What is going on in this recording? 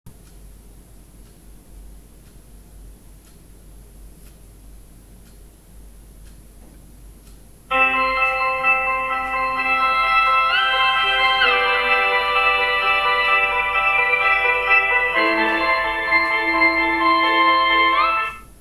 I waited for a couple of seconds and then the phone starts to ring.